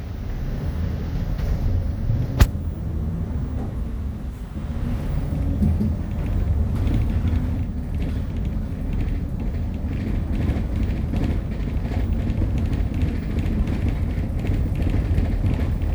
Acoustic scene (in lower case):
bus